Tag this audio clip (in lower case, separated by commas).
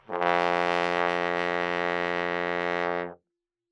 brass instrument, musical instrument, music